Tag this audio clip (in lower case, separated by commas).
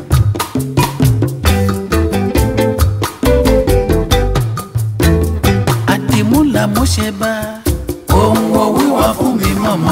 song, reggae, music